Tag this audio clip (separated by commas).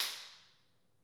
Hands, Clapping